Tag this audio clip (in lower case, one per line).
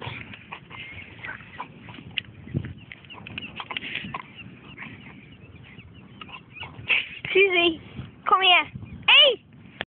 animal
speech